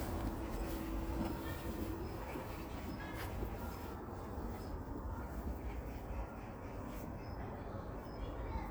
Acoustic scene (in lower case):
park